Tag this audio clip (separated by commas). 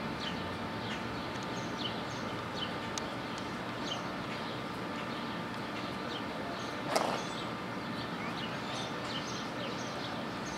zebra braying